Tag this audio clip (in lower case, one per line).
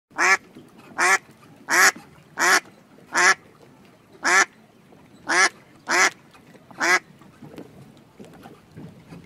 duck quacking